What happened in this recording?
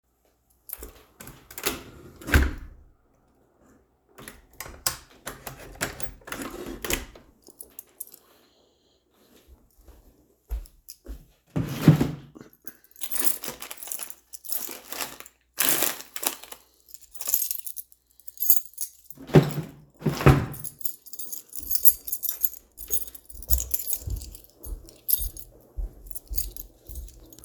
Closed the window, opened drawer, took out keychain, closed drawer.